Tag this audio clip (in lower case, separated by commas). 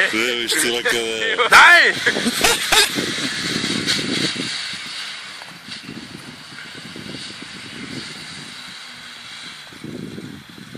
outside, rural or natural, speech, car, vehicle